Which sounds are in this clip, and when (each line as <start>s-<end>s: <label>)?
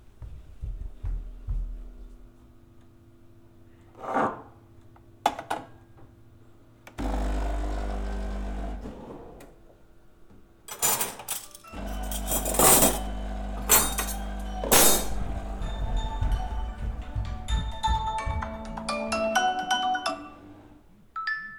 0.2s-1.9s: footsteps
3.9s-4.4s: cutlery and dishes
5.2s-5.7s: coffee machine
6.9s-9.4s: coffee machine
10.6s-15.0s: cutlery and dishes
11.6s-20.4s: phone ringing
11.7s-17.2s: coffee machine
15.9s-18.6s: footsteps
21.1s-21.6s: phone ringing